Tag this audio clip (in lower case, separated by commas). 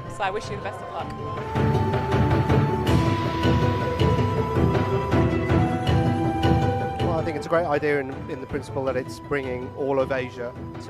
music, speech, theme music